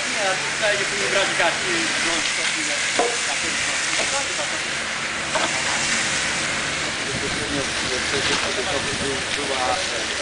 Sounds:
Fire, Speech

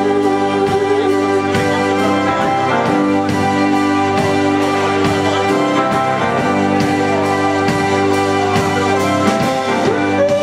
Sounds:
Music, Speech, Blues

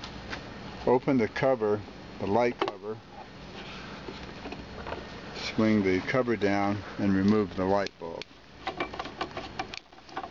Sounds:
Speech

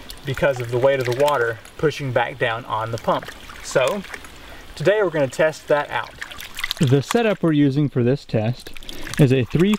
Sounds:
Speech, Pump (liquid), pumping water

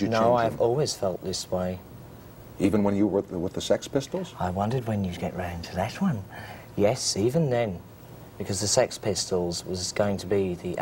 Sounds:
Speech

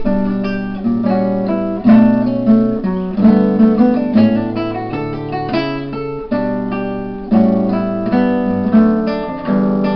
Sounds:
Strum, Acoustic guitar, Guitar, Plucked string instrument, Musical instrument, Music

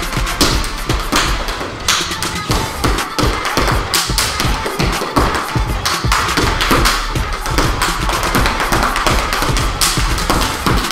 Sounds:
Music

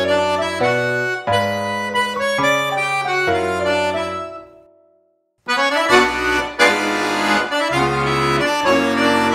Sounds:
playing accordion

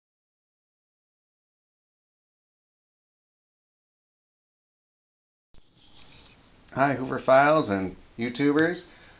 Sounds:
Speech

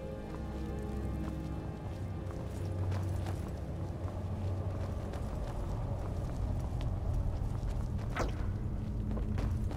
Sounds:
Music

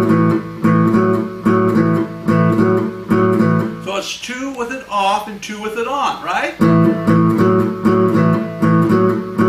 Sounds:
Music, Strum, Plucked string instrument, Musical instrument, Acoustic guitar, Guitar, Speech

